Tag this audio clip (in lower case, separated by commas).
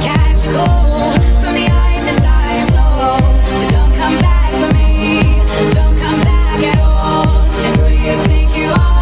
people shuffling, shuffle, music